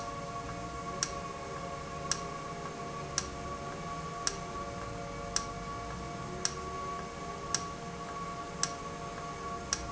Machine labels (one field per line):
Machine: valve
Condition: normal